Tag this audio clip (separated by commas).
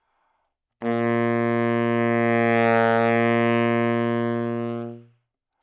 Music, Wind instrument, Musical instrument